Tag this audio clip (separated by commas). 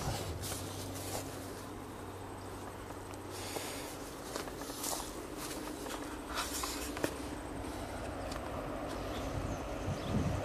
footsteps, Train, Vehicle